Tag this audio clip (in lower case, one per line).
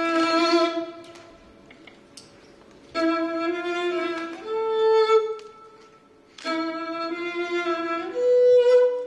music